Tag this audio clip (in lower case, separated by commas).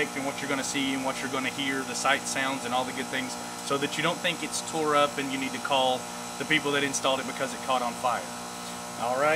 speech